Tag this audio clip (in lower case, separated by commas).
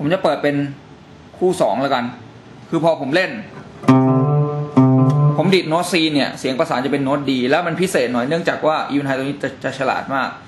plucked string instrument, effects unit, slide guitar, guitar, music, musical instrument